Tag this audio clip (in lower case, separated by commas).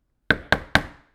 knock, door, home sounds